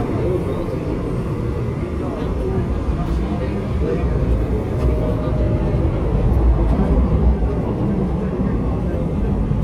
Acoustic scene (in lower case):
subway train